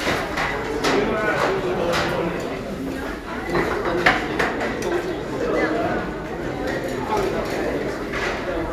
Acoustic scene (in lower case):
crowded indoor space